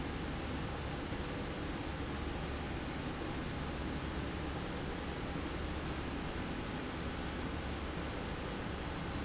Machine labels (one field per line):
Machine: slide rail